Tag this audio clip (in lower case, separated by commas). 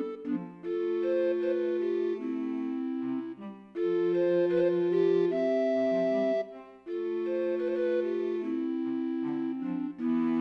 music